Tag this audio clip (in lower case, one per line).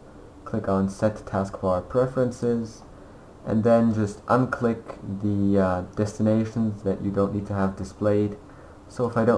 speech